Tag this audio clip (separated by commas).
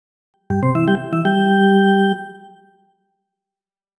Music, Keyboard (musical), Organ, Musical instrument